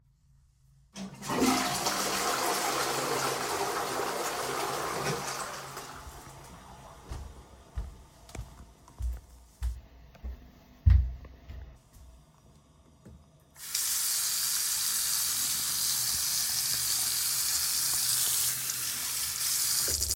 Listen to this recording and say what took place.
I flushed the toilet and then went to the bathroom to wash my hands.